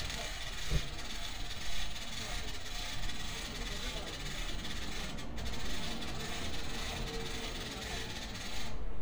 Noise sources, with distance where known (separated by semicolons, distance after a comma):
person or small group talking